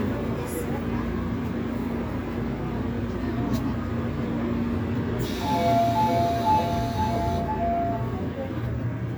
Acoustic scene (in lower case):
subway train